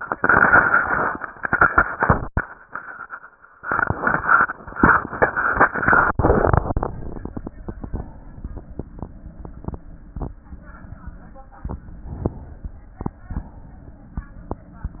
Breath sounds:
7.76-8.92 s: inhalation
8.92-9.84 s: exhalation
12.22-13.14 s: inhalation
13.14-14.61 s: exhalation

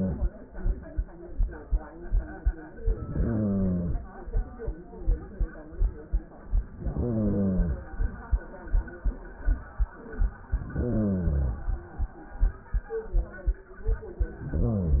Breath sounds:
2.74-4.06 s: inhalation
6.64-7.96 s: inhalation
10.55-11.87 s: inhalation
14.39-15.00 s: inhalation

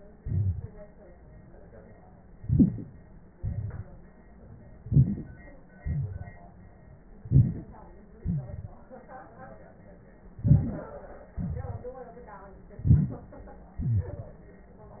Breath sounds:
0.19-0.67 s: exhalation
2.35-3.11 s: inhalation
3.36-4.04 s: exhalation
4.84-5.52 s: inhalation
5.75-6.51 s: exhalation
7.23-7.88 s: inhalation
7.23-7.88 s: crackles
8.22-8.73 s: exhalation
8.23-8.48 s: wheeze
10.41-10.96 s: inhalation
11.38-11.93 s: exhalation
12.84-13.37 s: inhalation
13.79-14.01 s: rhonchi
13.89-14.42 s: exhalation

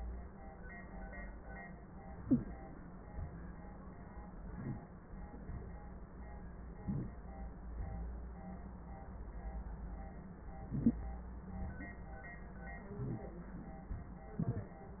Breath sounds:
2.07-2.62 s: inhalation
2.30-2.38 s: wheeze
4.36-4.92 s: inhalation
6.72-7.27 s: inhalation
10.55-11.10 s: inhalation
12.81-13.36 s: inhalation

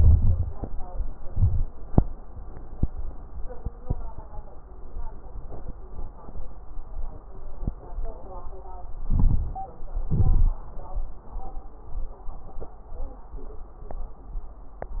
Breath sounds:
0.00-1.25 s: inhalation
0.00-1.27 s: crackles
1.27-1.94 s: exhalation
1.29-1.98 s: crackles
9.09-10.07 s: inhalation
9.09-10.07 s: crackles
10.08-10.74 s: exhalation
10.08-10.76 s: crackles

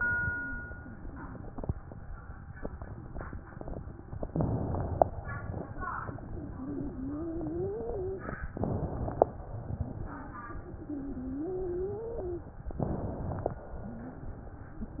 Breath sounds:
4.23-5.14 s: inhalation
5.19-8.44 s: exhalation
6.18-8.21 s: wheeze
8.53-9.32 s: inhalation
9.35-12.67 s: exhalation
10.05-12.49 s: wheeze
12.74-13.53 s: inhalation
13.53-15.00 s: exhalation
13.79-14.19 s: wheeze
14.78-15.00 s: wheeze

